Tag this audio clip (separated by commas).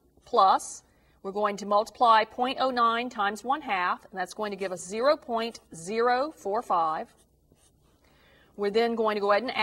Writing, Speech